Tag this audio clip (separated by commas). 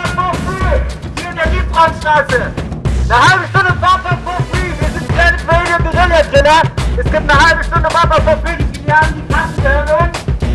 Speech, Music